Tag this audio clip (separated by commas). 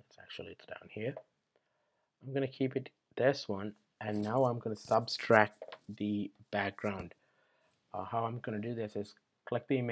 Speech